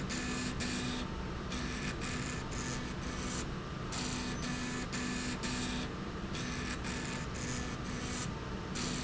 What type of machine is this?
slide rail